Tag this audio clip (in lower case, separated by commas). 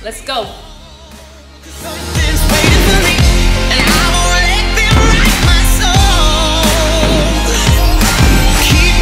speech, music